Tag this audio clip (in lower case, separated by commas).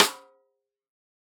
music, musical instrument, snare drum, drum, percussion